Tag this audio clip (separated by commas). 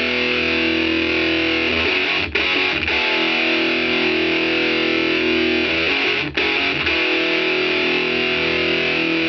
Music